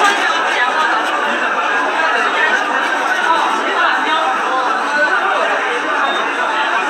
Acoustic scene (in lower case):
subway station